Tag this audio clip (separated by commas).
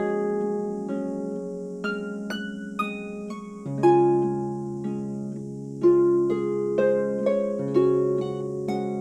playing harp